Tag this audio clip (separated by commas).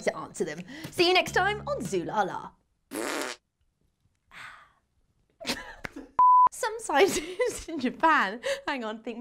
people farting